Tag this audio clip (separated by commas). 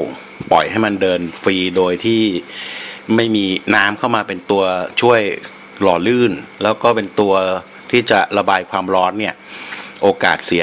Speech